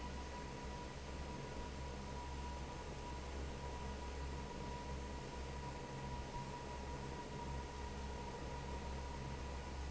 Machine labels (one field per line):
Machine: fan